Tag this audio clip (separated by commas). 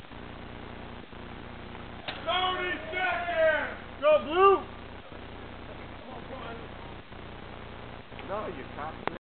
Speech